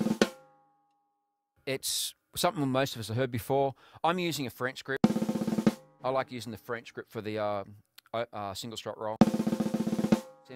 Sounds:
musical instrument
speech
music
drum kit
drum

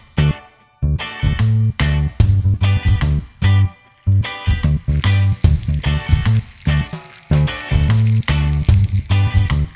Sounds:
music

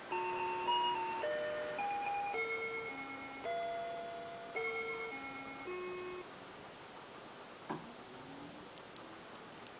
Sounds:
music

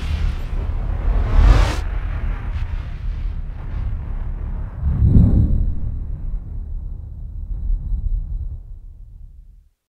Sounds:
explosion

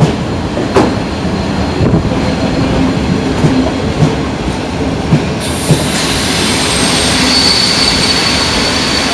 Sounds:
train wheels squealing
clickety-clack
rail transport
railroad car
train

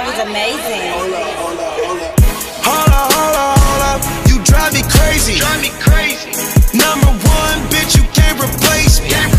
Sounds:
outside, rural or natural
music
speech

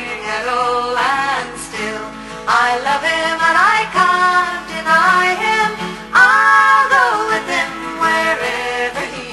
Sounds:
singing
music
country

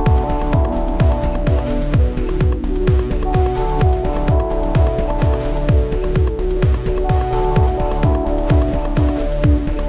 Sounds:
electronica

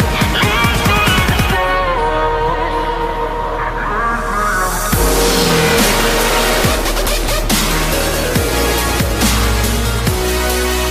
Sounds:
music

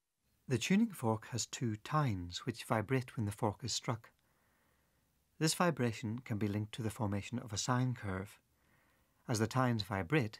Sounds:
narration
speech

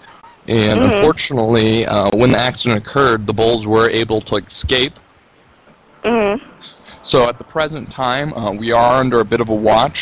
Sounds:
speech

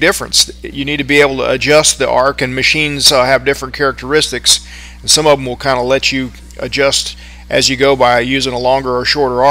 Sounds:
arc welding

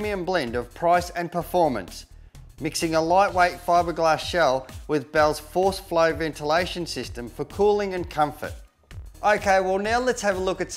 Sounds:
music
speech

